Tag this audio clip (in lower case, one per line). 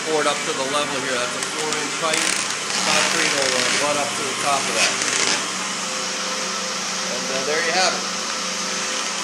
splinter